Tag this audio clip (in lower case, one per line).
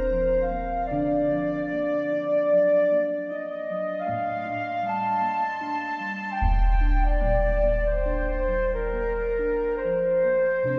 music